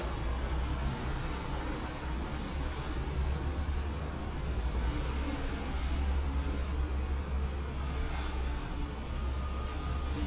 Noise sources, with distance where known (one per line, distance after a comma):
engine of unclear size, near
reverse beeper